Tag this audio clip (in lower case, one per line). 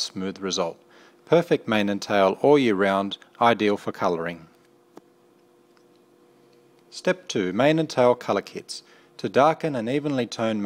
speech